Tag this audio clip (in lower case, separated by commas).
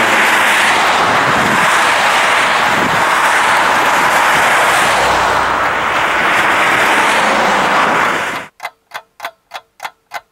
car, vehicle, outside, urban or man-made